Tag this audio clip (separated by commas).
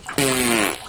Fart